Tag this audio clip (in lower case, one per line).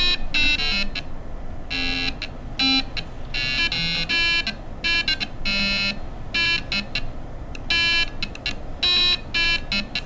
music